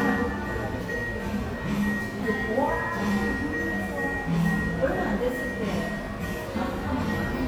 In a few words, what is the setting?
cafe